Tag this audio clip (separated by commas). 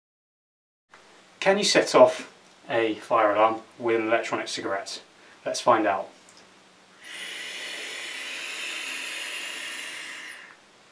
Speech